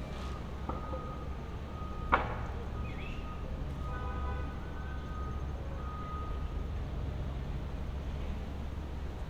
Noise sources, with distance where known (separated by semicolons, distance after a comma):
car horn, near; reverse beeper